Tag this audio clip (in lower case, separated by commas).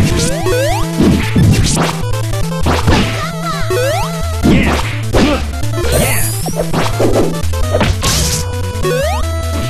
music